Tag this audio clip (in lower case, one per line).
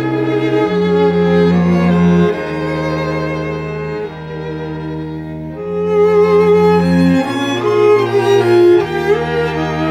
cello
bowed string instrument
fiddle